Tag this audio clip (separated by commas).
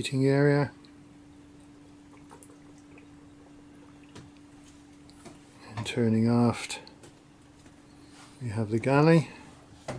Speech